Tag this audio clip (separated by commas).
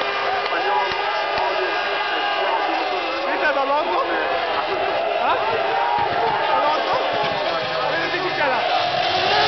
Speech, Walk